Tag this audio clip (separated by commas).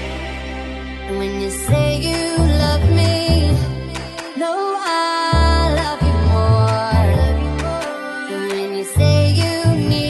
Music